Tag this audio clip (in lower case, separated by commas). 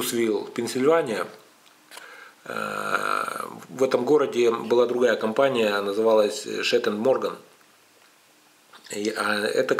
speech